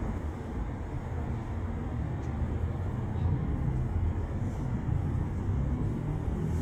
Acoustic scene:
residential area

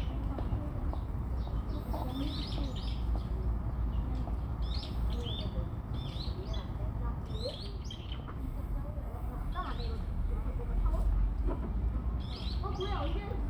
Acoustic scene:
park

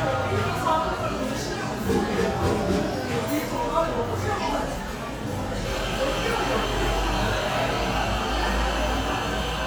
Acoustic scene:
cafe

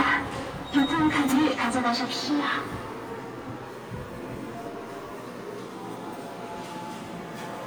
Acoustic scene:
subway station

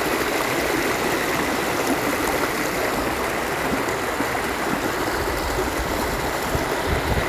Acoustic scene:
park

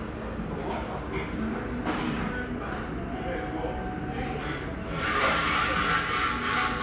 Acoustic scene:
restaurant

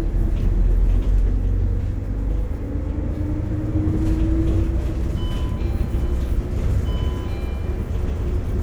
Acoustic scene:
bus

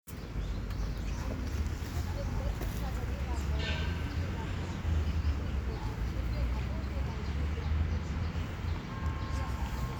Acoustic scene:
park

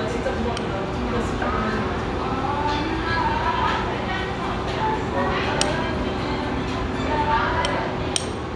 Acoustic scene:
restaurant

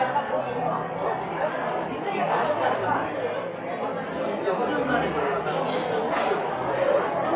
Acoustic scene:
cafe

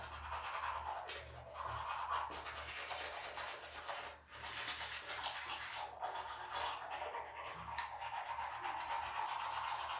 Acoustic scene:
restroom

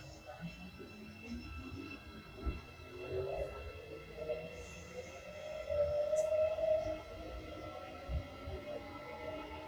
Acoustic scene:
subway train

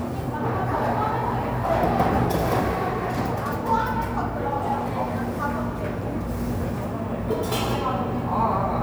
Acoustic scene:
cafe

